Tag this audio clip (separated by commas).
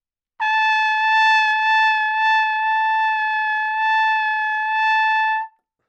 Trumpet, Brass instrument, Music, Musical instrument